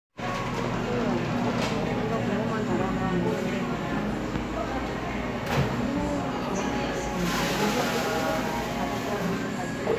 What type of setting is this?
cafe